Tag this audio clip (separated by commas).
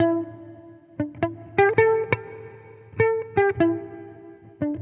Electric guitar, Guitar, Plucked string instrument, Musical instrument, Music